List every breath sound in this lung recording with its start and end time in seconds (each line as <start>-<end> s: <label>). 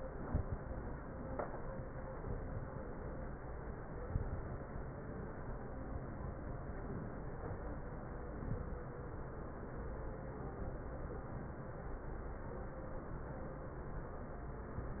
0.17-0.58 s: inhalation
0.17-0.58 s: crackles
2.18-2.72 s: inhalation
2.18-2.72 s: crackles
4.06-4.69 s: inhalation
8.32-8.86 s: inhalation